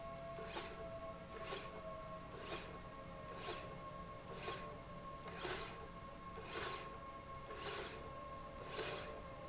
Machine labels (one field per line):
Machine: slide rail